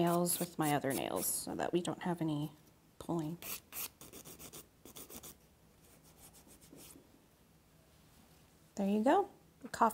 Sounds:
Rub

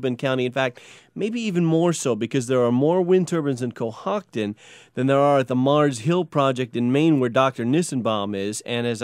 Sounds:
Speech

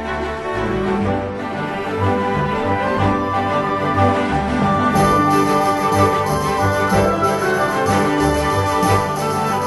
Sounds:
Music, Theme music, Soundtrack music

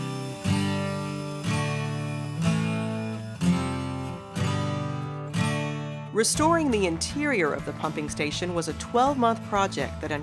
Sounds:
Music, Speech

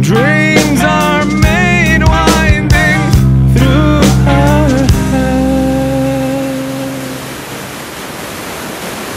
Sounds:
Music, outside, rural or natural

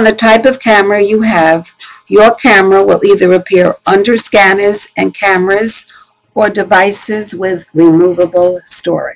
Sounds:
Speech

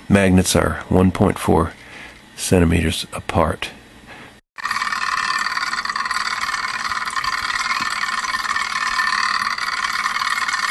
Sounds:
Speech

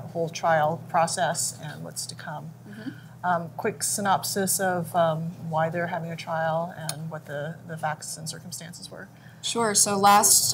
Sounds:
Speech

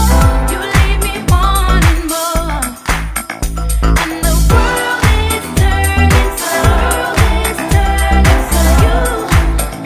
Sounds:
Music

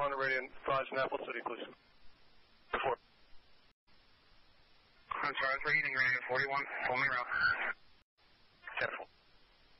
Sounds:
police radio chatter

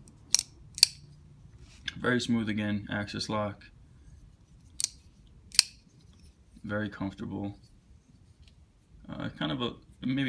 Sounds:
Tools, Speech

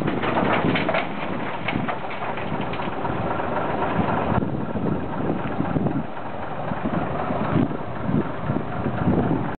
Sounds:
Truck, Vehicle

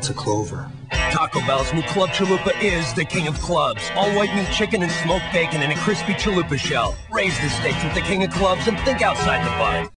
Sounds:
Speech, Music

